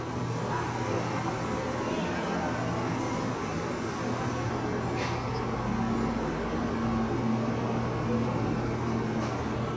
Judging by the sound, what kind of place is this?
cafe